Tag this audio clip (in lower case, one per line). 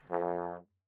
musical instrument
brass instrument
music